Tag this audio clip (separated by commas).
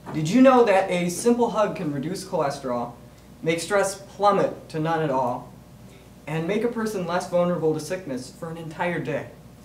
Speech, Male speech, Narration